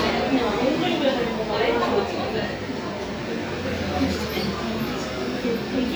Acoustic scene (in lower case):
cafe